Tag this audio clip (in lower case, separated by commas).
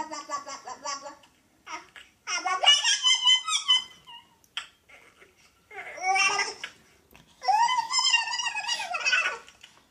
babbling, people babbling